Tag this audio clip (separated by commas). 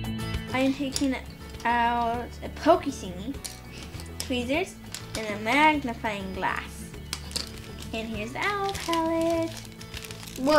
Music, Speech